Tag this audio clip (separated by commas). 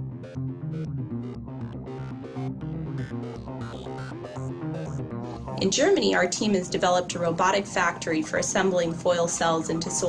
Speech, Music, inside a small room